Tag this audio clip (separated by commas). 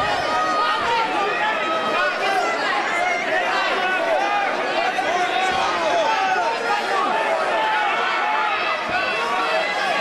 Speech